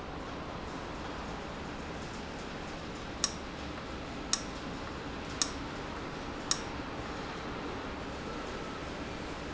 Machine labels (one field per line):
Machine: valve